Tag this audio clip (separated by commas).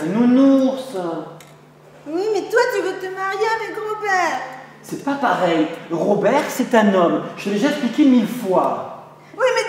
Speech